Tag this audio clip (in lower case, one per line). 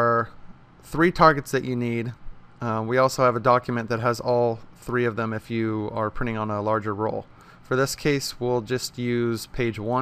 speech